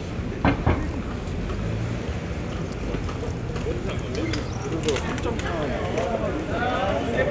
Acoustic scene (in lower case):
residential area